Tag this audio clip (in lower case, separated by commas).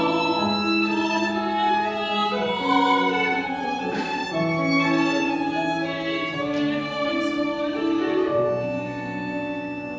opera, singing, piano, classical music, music, musical instrument